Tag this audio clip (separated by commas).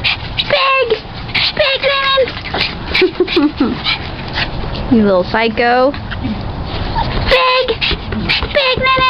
Speech